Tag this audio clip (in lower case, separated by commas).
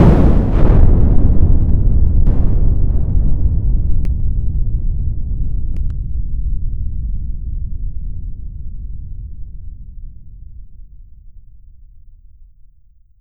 thunderstorm, thunder